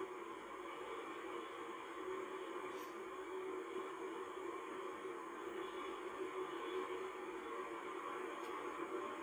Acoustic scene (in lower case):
car